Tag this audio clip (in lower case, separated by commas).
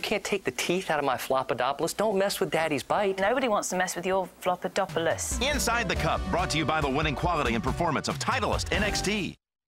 music, speech